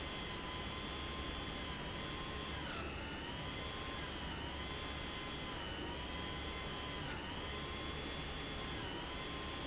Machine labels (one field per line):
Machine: pump